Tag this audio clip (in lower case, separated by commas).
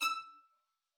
music, bowed string instrument, musical instrument